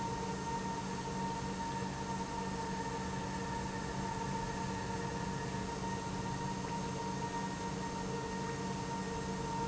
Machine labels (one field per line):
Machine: pump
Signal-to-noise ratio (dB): -6 dB